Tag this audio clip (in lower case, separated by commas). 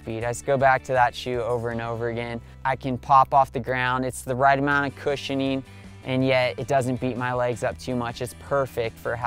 music, speech